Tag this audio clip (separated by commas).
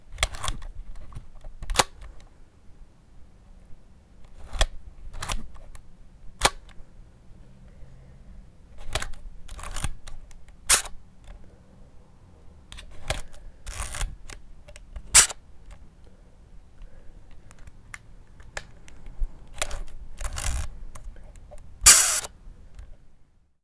Camera, Mechanisms